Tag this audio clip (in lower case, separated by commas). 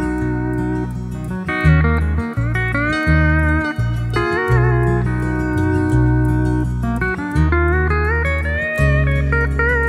guitar, music